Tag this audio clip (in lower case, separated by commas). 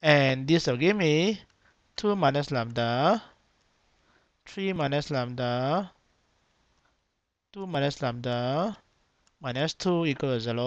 clicking